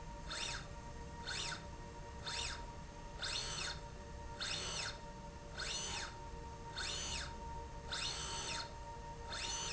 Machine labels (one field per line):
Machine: slide rail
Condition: normal